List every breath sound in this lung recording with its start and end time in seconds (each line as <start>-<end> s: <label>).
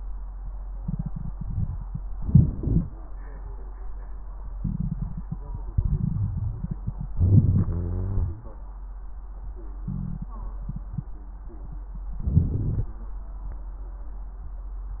2.14-2.59 s: inhalation
2.56-3.01 s: exhalation
7.16-7.70 s: inhalation
7.69-8.46 s: exhalation
7.69-8.46 s: wheeze
12.21-12.92 s: inhalation
12.21-12.92 s: crackles